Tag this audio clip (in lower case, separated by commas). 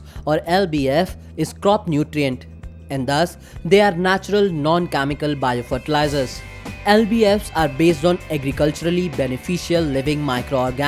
music, speech